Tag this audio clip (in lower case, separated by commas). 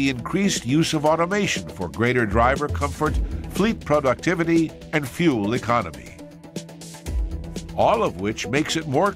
music, speech